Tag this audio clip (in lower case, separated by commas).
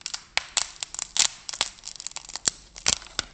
wood